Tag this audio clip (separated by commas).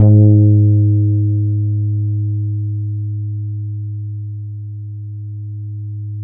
Bass guitar, Music, Plucked string instrument, Guitar, Musical instrument